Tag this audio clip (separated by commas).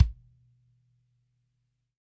Percussion, Bass drum, Music, Drum, Musical instrument